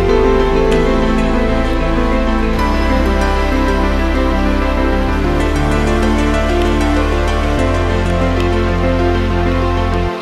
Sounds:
Background music

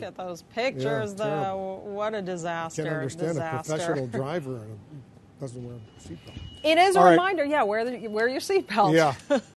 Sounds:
Speech

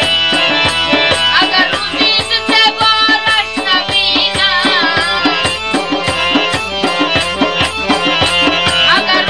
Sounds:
Traditional music, Music

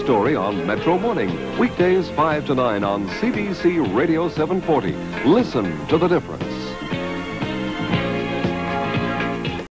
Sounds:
Music, Radio, Speech

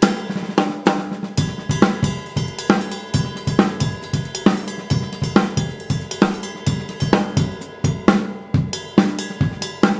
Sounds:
Cymbal, Musical instrument, Drum kit, Snare drum, Music, Drum, Hi-hat

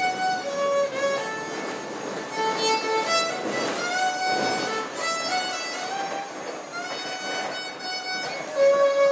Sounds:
Music, fiddle, Musical instrument

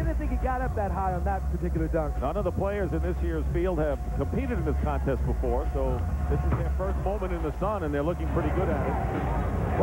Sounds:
Music, Speech

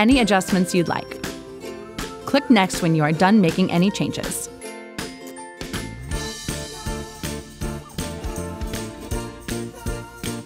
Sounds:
Speech, Music

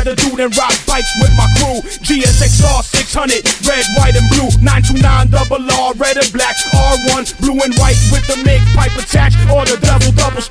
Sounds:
Music

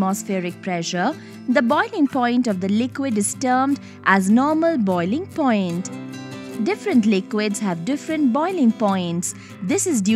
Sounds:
Speech, Music

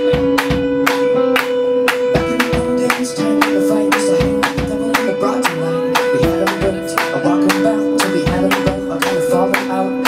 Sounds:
Funk, Music

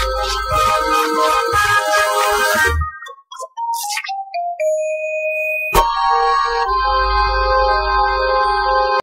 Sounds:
Sound effect

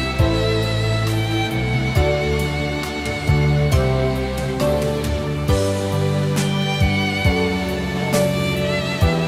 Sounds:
Music

